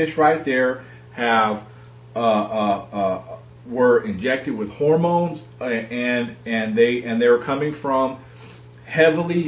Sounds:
Speech, inside a small room

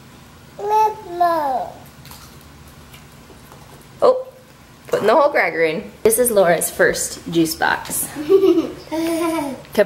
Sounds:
Child speech, inside a small room, Speech

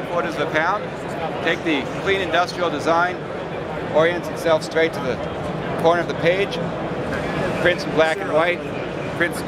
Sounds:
Speech

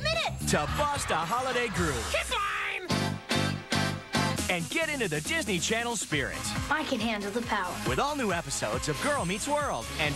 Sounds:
Music, Speech

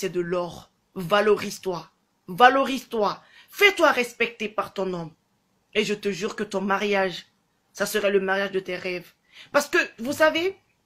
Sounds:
Speech

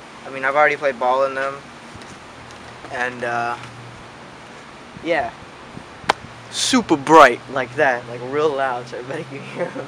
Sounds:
Speech

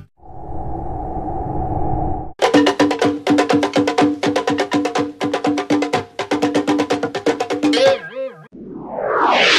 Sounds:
Wood block, Music

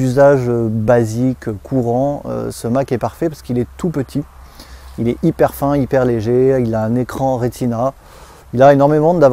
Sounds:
Speech

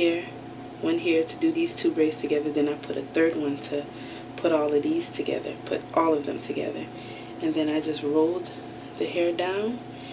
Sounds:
Speech

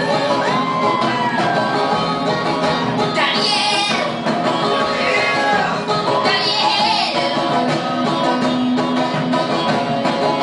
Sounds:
Music, Bluegrass, Singing

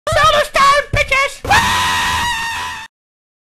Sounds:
Speech

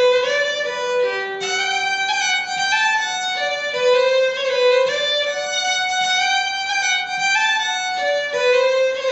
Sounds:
Music, Musical instrument, Violin

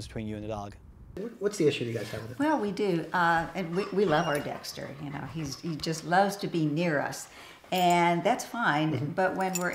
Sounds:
Dog, pets, Animal, Speech

